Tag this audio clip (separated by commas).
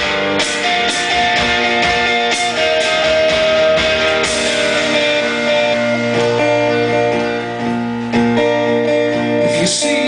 Musical instrument, Drum kit, Music, Drum